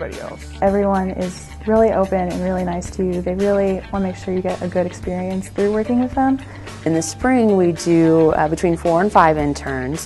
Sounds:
music
speech
soundtrack music

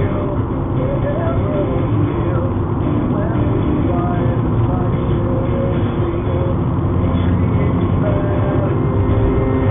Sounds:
vehicle
car
music
car passing by

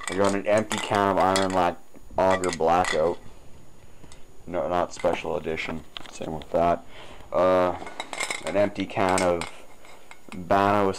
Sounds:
speech

